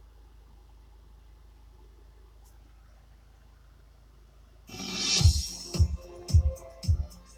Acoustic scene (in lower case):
car